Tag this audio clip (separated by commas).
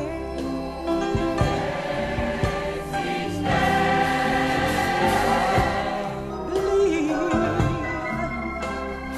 Choir, Music